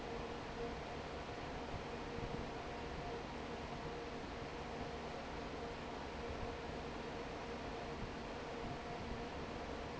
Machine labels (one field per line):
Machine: fan